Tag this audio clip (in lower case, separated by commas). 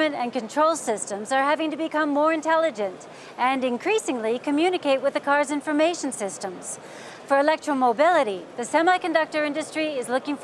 speech